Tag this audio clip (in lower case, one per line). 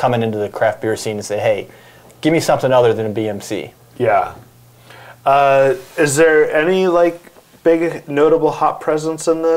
speech